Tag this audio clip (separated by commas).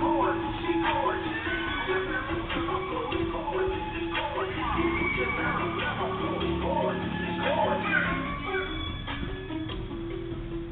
Music